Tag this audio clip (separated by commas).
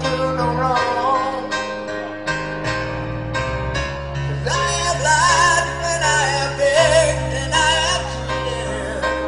Music